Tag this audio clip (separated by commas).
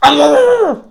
Animal, Dog, pets